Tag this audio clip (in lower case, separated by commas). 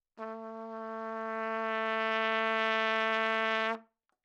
musical instrument, brass instrument, trumpet, music